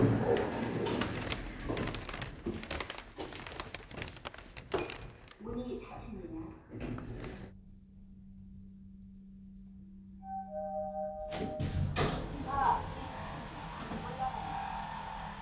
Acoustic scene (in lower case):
elevator